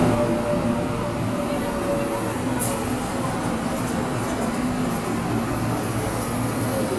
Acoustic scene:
subway station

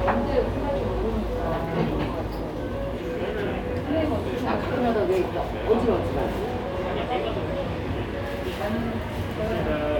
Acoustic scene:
cafe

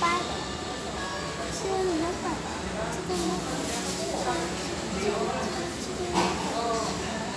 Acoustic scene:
restaurant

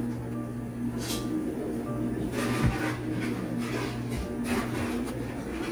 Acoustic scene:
cafe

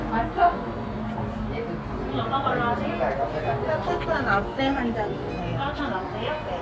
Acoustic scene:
cafe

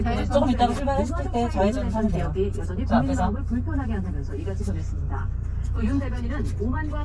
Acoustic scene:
car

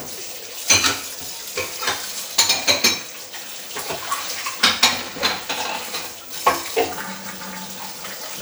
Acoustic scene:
kitchen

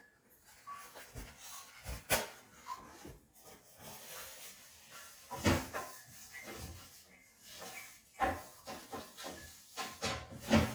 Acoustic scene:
restroom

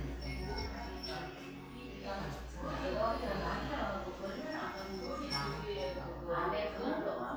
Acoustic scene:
crowded indoor space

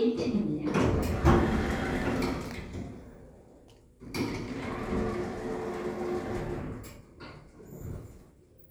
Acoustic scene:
elevator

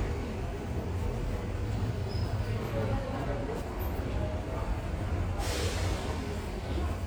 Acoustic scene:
subway station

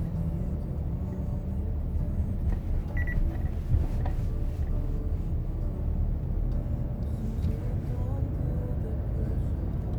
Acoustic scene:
car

